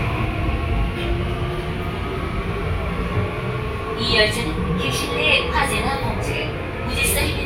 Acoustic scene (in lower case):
subway train